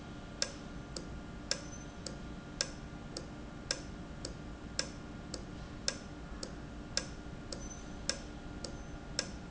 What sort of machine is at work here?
valve